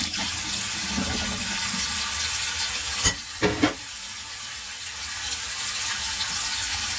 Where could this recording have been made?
in a kitchen